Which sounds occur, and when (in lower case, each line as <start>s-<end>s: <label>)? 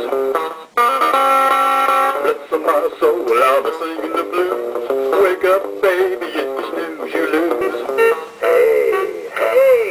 0.0s-9.9s: background noise
0.0s-9.9s: music
2.2s-4.7s: male singing
5.1s-8.2s: male singing
8.4s-9.2s: man speaking
9.4s-9.9s: man speaking